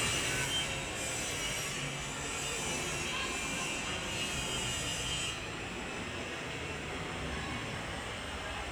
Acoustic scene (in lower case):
residential area